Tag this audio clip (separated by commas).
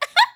Giggle, Laughter, Human voice